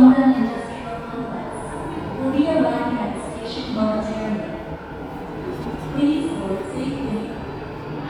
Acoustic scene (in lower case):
subway station